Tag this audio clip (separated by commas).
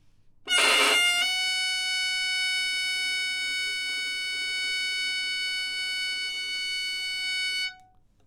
Bowed string instrument, Musical instrument, Music